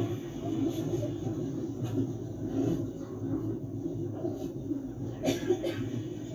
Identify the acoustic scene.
subway train